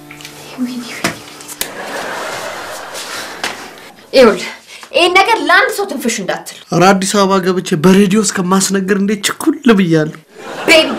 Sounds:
speech
inside a small room

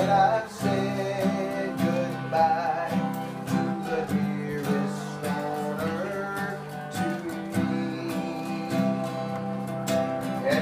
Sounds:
music
male singing

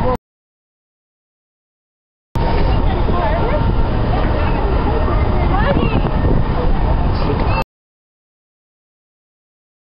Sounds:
speech

